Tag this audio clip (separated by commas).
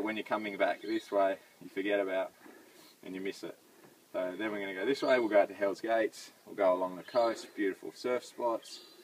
Speech